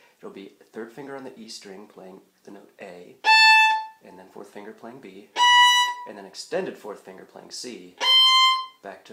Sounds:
Bowed string instrument, Violin

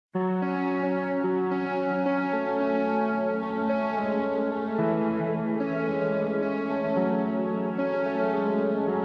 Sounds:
Tender music, Music

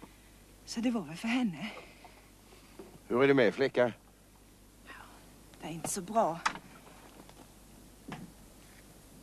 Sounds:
Speech

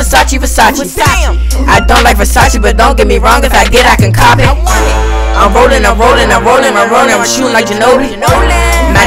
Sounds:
Music

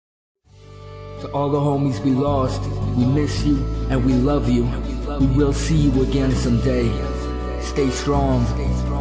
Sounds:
Speech, Music

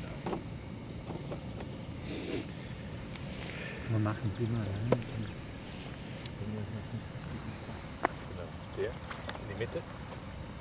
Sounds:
Speech

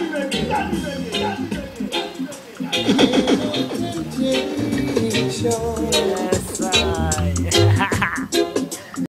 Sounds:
Music, Speech

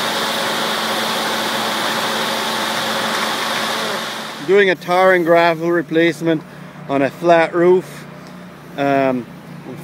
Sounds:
Speech

